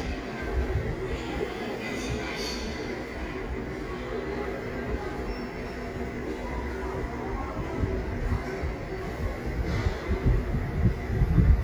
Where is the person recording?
in a subway station